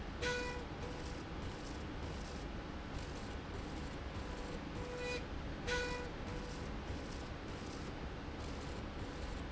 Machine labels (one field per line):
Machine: slide rail